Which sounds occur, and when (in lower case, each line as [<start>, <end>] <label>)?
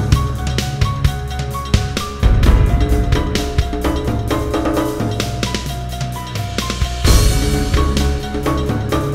[0.00, 9.14] music
[6.28, 7.99] sound effect